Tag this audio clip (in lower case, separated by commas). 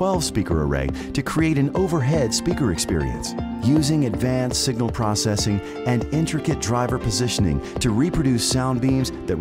music, speech